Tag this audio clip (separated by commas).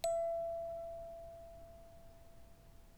Bell